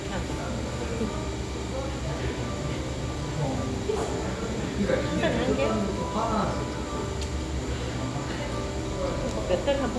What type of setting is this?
cafe